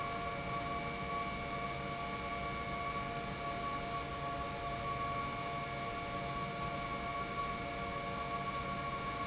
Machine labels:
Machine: pump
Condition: normal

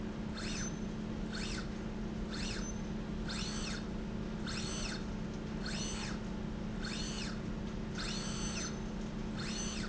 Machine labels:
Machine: slide rail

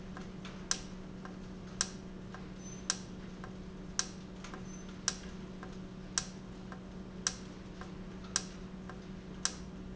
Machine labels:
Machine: valve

